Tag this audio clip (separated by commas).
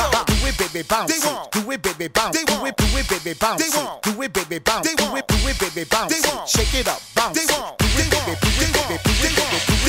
Music